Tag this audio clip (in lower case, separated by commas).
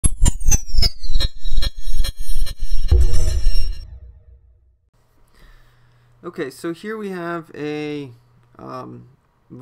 speech, music